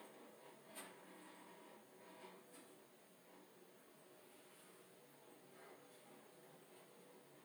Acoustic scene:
elevator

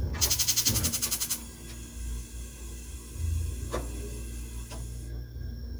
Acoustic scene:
kitchen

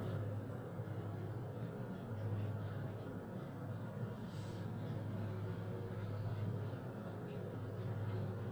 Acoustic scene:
elevator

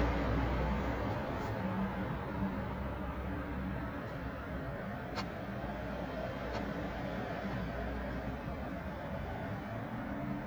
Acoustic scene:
residential area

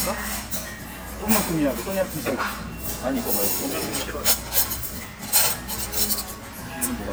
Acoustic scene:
restaurant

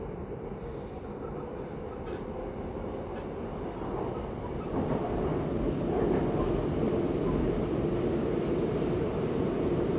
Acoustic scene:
subway train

